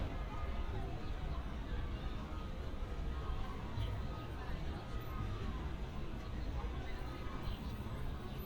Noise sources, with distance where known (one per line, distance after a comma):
siren
reverse beeper
person or small group talking
person or small group shouting